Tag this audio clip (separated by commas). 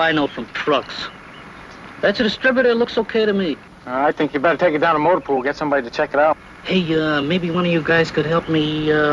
Speech